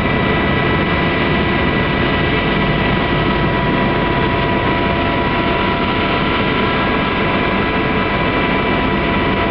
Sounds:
vehicle
aircraft

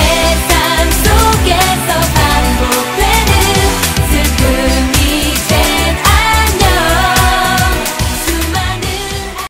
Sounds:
music

